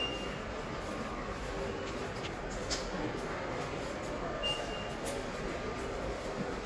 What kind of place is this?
subway station